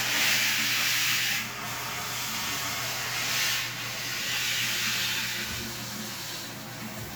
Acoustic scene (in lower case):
restroom